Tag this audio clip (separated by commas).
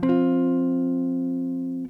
Musical instrument, Electric guitar, Plucked string instrument, Guitar, Music